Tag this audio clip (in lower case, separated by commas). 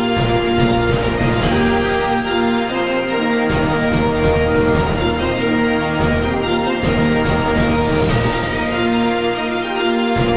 music